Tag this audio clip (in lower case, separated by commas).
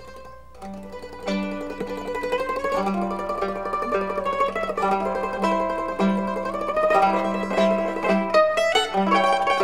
music, mandolin